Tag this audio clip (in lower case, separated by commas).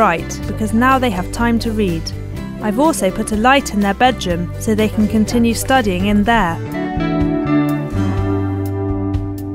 speech, steel guitar, music